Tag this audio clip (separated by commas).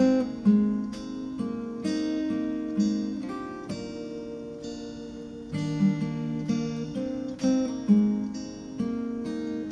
Guitar, Musical instrument, Acoustic guitar, Plucked string instrument, Music, Strum